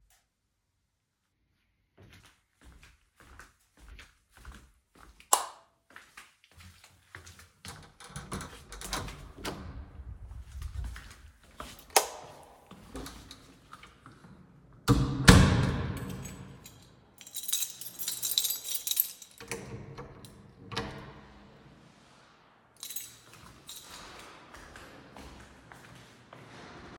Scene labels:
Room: hallway, living room; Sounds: footsteps, light switch, door (more than once), keys

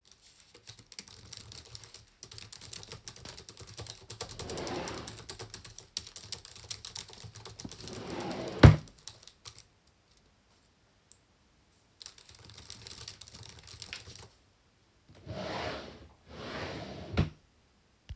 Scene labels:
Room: office; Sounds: keyboard typing, wardrobe or drawer (more than once)

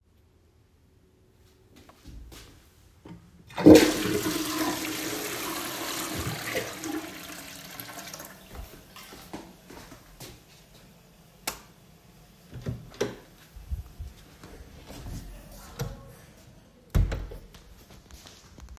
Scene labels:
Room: lavatory; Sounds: footsteps, toilet flushing, light switch, door (more than once)

